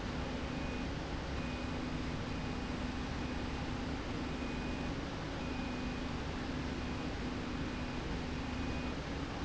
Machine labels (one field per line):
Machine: slide rail